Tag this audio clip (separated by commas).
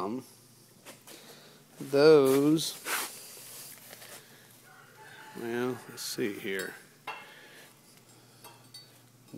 Speech, inside a small room